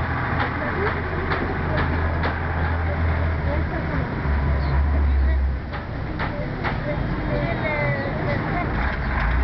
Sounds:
vehicle, speech, air brake

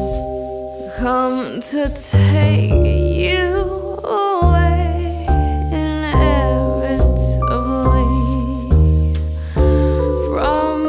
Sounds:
music

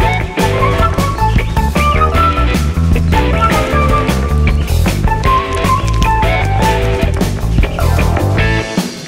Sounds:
bird call, bird, tweet

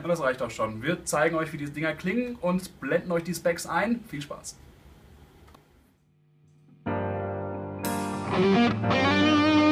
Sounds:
music, speech

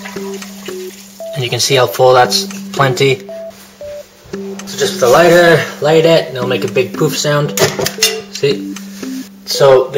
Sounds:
water

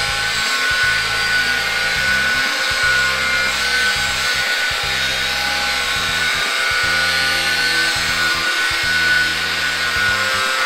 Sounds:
drill, tools, music

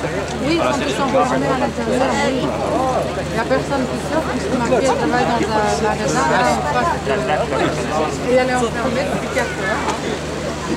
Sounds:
speech

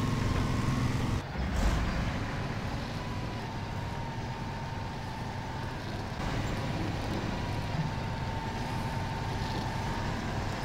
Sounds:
vehicle

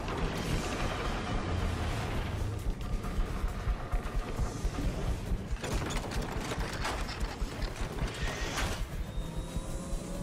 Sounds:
rumble, sound effect

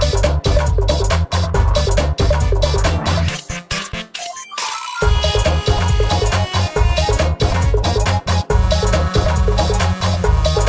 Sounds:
music

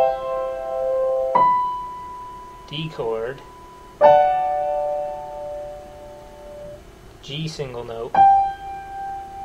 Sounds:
inside a small room, piano, musical instrument, speech, keyboard (musical), music

